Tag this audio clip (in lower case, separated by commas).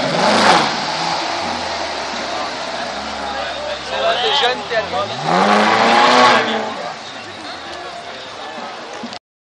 speech